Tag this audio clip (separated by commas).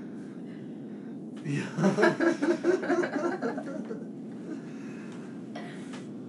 Laughter, Human voice